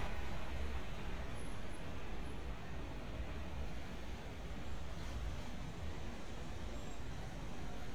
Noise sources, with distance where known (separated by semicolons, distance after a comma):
engine of unclear size; car horn, far